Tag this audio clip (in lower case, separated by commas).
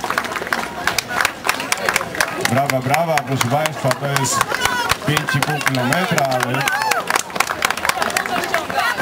outside, urban or man-made, speech, run